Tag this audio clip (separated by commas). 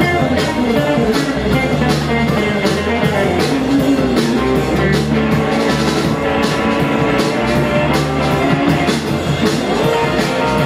Guitar, Drum, Musical instrument, Music